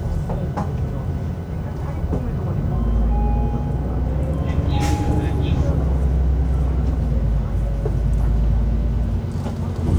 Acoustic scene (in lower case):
bus